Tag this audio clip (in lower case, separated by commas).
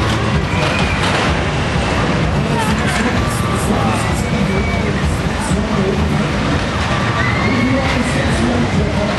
speech